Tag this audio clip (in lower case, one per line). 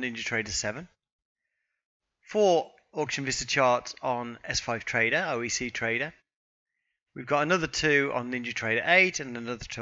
speech